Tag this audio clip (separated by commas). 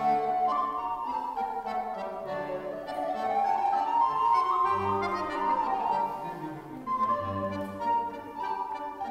Music